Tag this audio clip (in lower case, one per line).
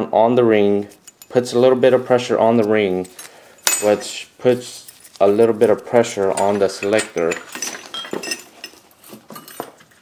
speech